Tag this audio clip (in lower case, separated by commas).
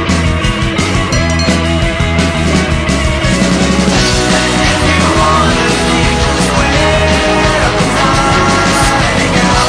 music